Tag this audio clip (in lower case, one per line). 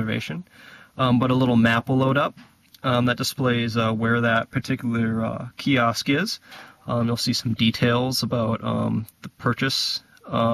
speech
inside a small room